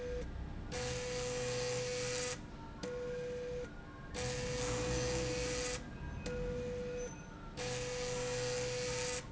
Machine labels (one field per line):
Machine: slide rail